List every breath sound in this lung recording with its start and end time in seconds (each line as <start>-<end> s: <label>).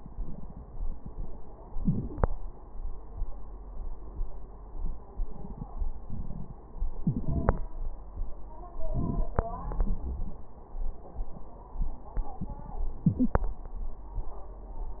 1.77-2.19 s: inhalation
7.03-7.62 s: inhalation
8.79-9.30 s: inhalation
8.79-9.30 s: crackles
9.33-10.39 s: exhalation
9.48-10.00 s: wheeze
12.94-13.53 s: inhalation